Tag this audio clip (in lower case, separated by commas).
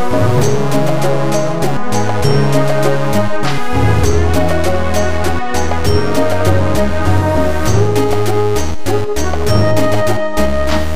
exciting music, music